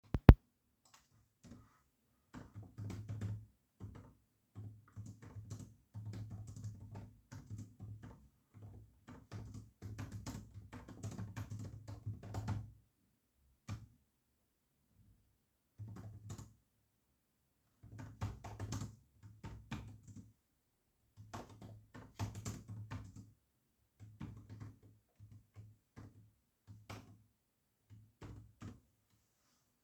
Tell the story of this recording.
Just typing